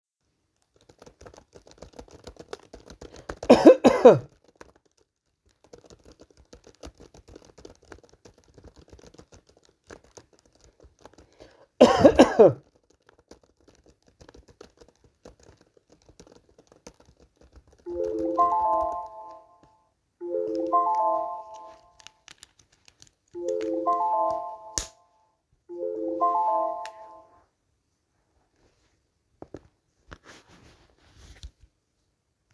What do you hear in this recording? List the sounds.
keyboard typing, phone ringing